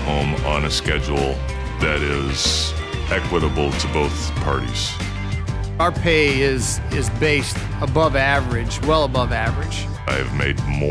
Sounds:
speech, music

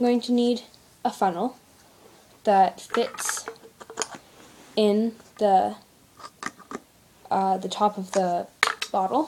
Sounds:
speech

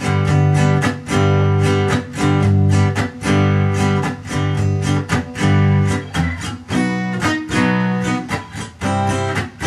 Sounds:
guitar, musical instrument, plucked string instrument, strum, music

